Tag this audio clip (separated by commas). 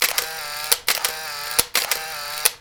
Camera, Mechanisms